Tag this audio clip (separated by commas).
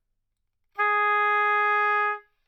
Musical instrument, Music, woodwind instrument